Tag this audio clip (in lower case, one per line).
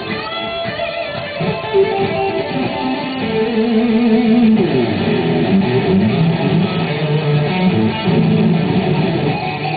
plucked string instrument
guitar
music
electric guitar
strum
musical instrument